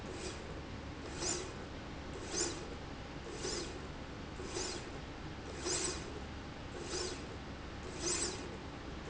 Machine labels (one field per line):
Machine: slide rail